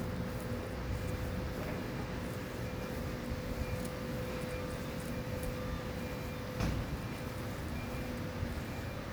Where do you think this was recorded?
in a residential area